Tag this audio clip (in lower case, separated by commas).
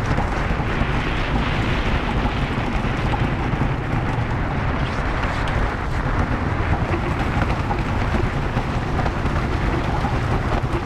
outside, rural or natural